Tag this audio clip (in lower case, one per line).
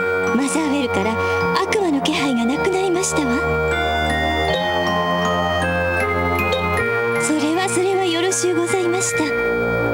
music
speech